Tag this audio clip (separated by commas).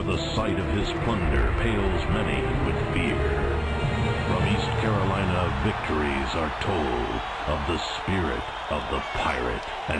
Music, Speech